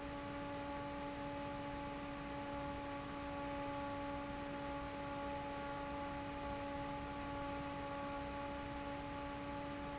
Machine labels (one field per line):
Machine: fan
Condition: normal